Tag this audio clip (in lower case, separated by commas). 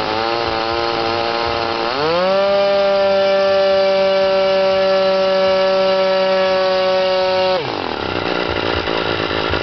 engine, medium engine (mid frequency), idling